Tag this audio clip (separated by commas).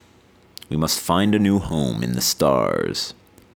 Speech, Male speech, Human voice